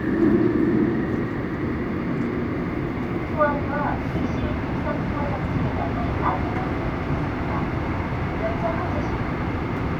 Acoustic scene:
subway train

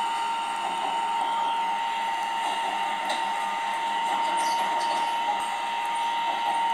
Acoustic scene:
subway train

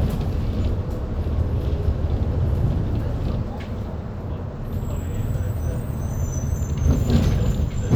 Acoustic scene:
bus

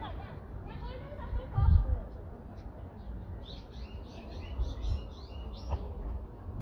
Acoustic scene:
residential area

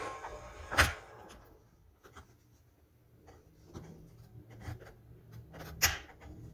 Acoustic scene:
elevator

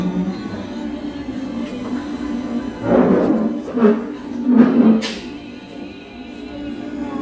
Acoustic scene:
cafe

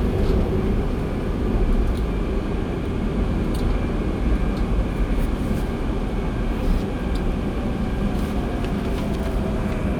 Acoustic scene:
subway train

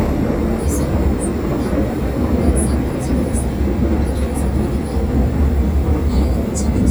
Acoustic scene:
subway train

